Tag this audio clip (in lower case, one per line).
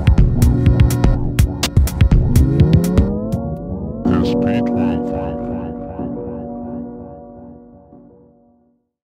music